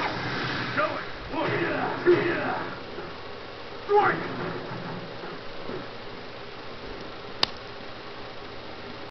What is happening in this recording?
Rustling followed by aggravated speech